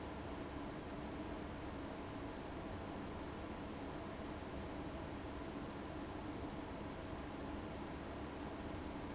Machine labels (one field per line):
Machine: fan